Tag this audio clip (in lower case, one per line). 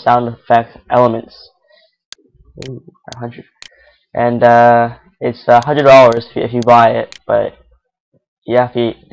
speech